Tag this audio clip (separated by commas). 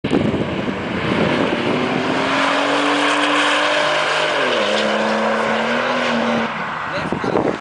Car, Speech, Vehicle